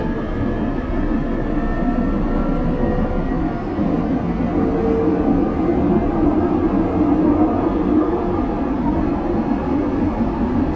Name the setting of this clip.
subway train